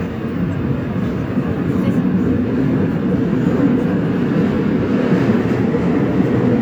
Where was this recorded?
on a subway train